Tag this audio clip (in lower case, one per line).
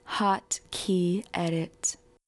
human voice
speech